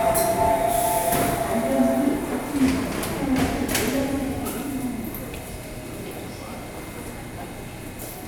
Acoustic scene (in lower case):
subway station